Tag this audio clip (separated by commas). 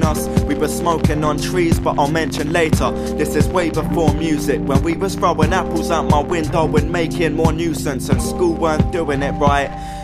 Music